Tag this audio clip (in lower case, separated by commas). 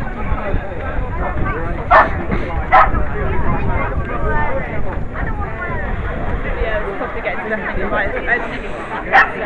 speech, outside, urban or man-made